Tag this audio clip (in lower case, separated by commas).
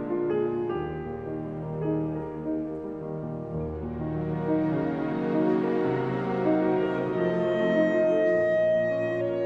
music